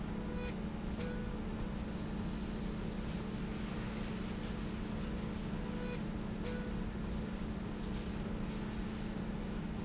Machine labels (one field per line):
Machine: slide rail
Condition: normal